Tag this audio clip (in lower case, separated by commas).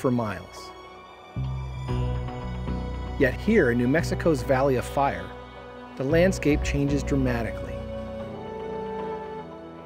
music, speech